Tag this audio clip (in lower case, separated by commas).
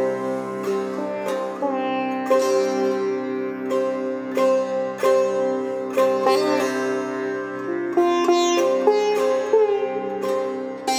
playing sitar